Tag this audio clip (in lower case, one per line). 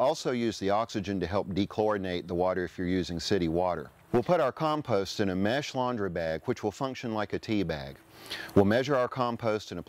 speech